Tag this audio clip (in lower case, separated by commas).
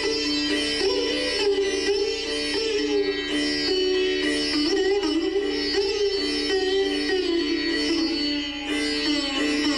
pizzicato